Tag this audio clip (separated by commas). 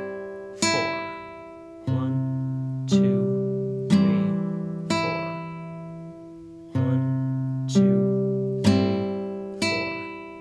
Musical instrument, Music, Guitar, Strum, Plucked string instrument